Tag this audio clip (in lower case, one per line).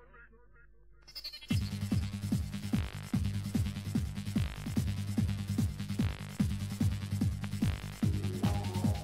techno
music